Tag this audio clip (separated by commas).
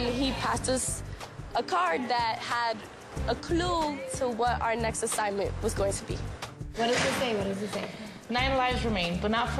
Music, Speech